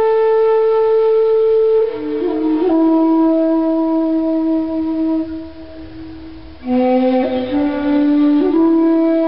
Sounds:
music

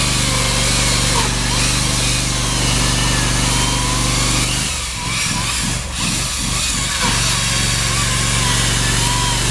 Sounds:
light engine (high frequency), tools

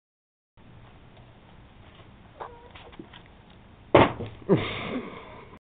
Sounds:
animal, cat, domestic animals

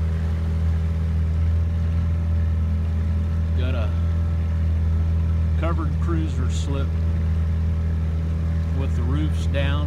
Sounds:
speech, water vehicle, vehicle, outside, rural or natural

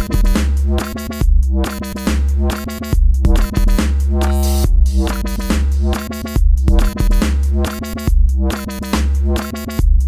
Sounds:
electronic music, music, dubstep

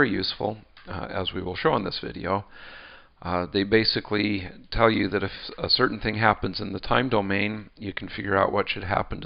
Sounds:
speech

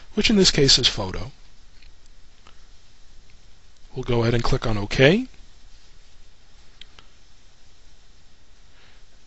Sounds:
speech

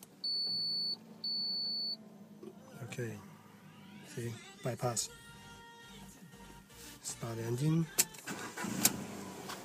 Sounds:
speech, music

